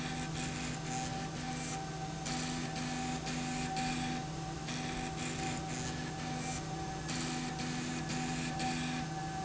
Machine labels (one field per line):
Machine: slide rail